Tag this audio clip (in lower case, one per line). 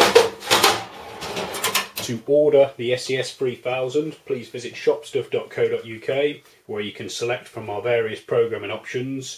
drawer open or close
speech